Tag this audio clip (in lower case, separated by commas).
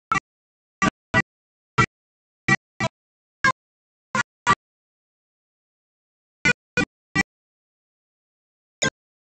harmonica, music